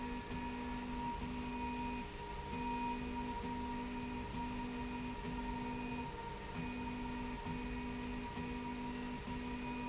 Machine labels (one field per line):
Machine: slide rail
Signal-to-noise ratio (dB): 0 dB